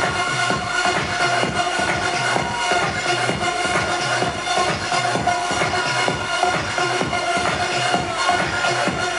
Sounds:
music

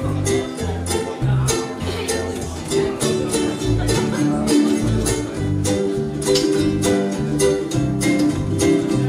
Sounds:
speech, music

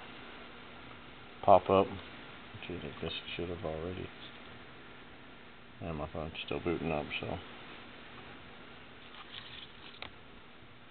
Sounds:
inside a small room, speech

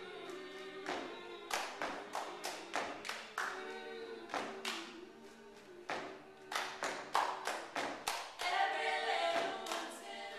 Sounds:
singing

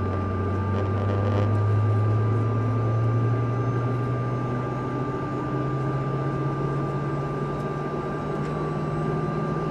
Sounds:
medium engine (mid frequency), vehicle

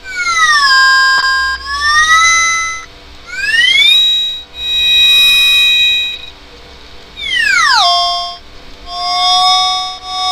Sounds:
music, synthesizer

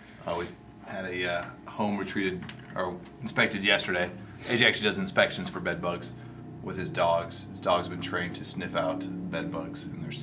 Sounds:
speech

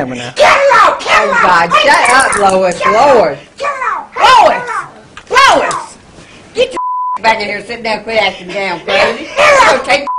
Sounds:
inside a small room, speech

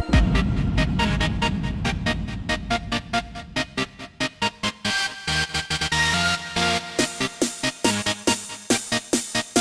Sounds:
music, sound effect

